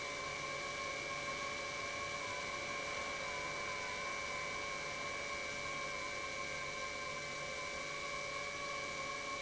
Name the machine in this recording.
pump